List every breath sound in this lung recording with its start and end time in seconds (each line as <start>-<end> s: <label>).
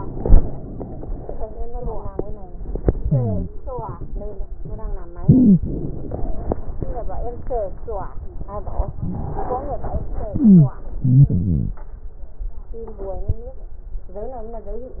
0.00-0.84 s: inhalation
0.00-0.84 s: crackles
5.18-5.59 s: wheeze
5.20-5.62 s: inhalation
5.59-8.92 s: crackles
5.62-8.94 s: exhalation
9.03-10.32 s: inhalation
10.36-11.81 s: exhalation